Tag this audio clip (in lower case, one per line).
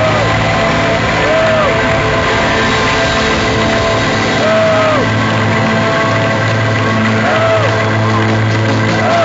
music